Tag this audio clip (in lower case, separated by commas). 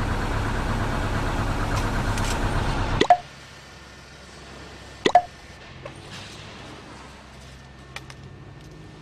vehicle